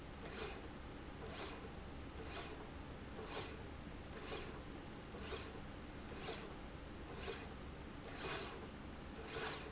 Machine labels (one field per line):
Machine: slide rail